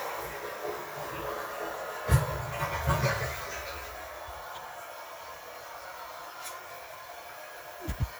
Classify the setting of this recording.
restroom